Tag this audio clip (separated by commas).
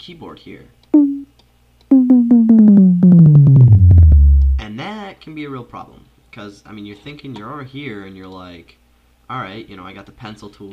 Music